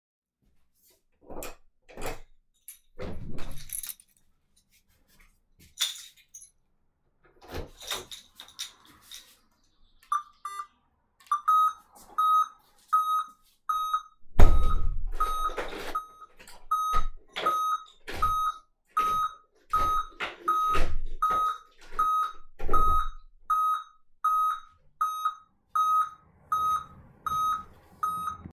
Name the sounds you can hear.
door, keys, footsteps